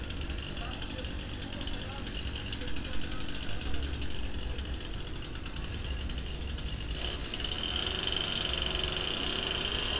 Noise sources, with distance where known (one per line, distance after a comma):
chainsaw, near